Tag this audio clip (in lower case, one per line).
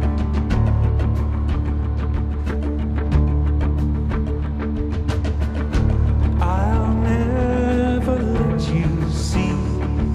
music